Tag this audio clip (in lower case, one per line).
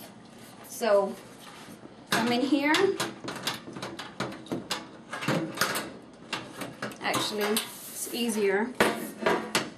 inside a small room
speech